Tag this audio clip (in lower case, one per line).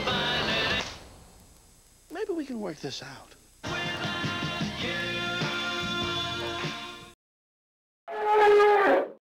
speech
music